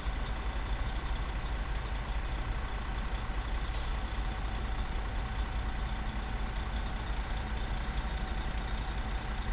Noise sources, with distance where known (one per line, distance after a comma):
large-sounding engine